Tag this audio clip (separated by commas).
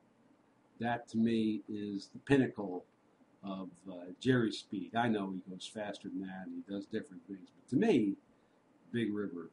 Speech